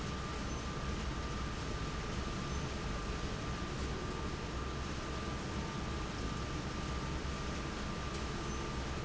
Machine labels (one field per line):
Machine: fan